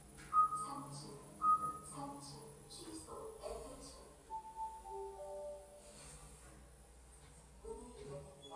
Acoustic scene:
elevator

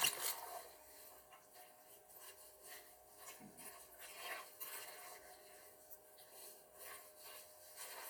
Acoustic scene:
kitchen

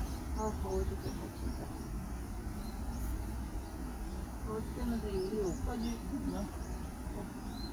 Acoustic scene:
park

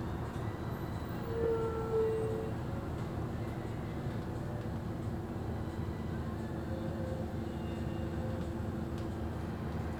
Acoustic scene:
bus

